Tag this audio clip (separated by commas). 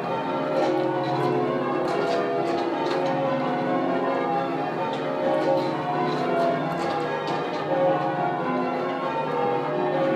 Church bell, Music, Bell